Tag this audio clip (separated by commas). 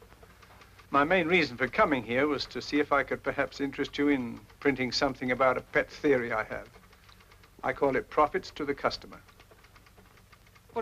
Speech, Male speech